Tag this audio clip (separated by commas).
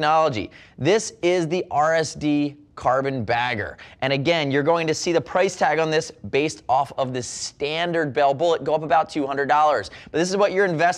Speech